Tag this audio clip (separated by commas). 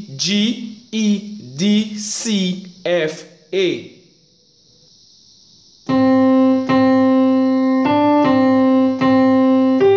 Piano, Music, Keyboard (musical), Musical instrument, Speech